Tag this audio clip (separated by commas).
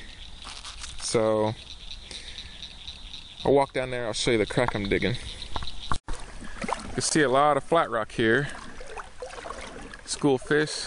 Speech